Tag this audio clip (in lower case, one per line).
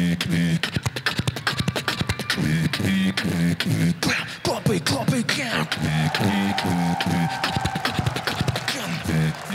beat boxing